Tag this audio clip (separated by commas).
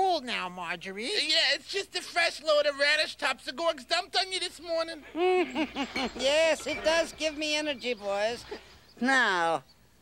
Speech